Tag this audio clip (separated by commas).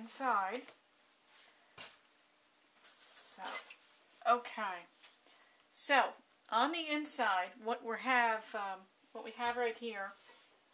Speech